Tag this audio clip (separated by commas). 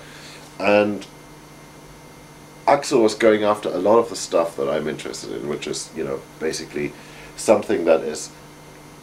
Speech